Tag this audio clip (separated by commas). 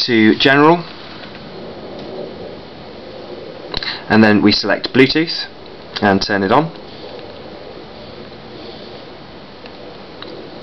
Speech